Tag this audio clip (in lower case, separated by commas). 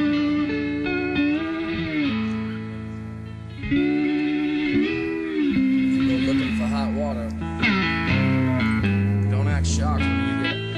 music, speech